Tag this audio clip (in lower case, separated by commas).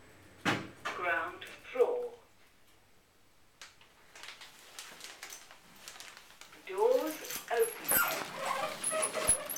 speech